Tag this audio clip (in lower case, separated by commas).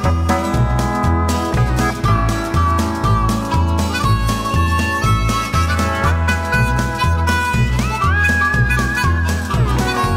music